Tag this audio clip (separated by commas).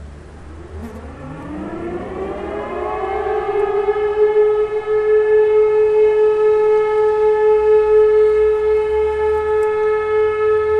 civil defense siren